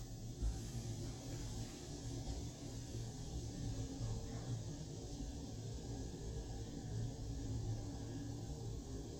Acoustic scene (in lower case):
elevator